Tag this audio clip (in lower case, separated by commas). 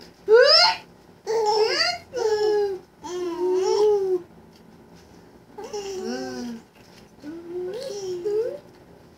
baby laughter